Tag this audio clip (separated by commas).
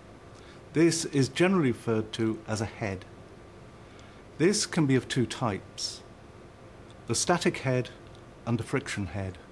Speech